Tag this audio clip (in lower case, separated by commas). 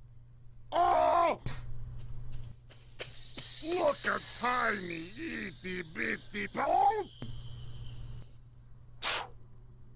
speech